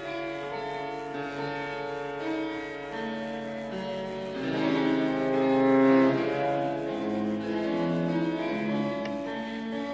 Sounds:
music, violin, musical instrument

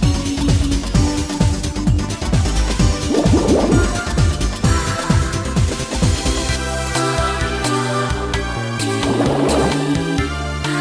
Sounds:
music

